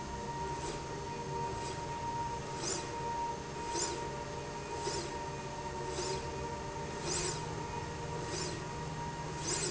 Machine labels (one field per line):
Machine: slide rail